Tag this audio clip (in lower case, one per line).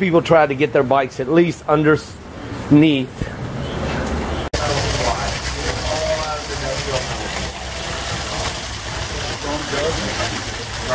speech